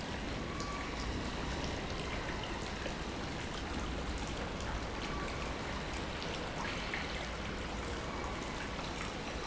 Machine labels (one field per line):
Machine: pump